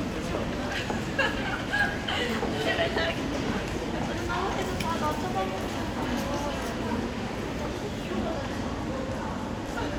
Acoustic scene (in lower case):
crowded indoor space